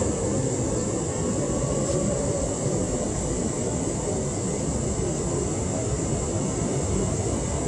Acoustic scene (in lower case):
subway train